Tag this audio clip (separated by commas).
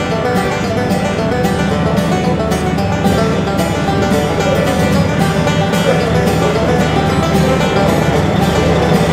Music